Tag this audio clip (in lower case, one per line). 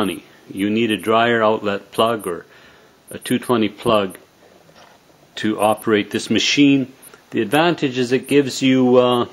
speech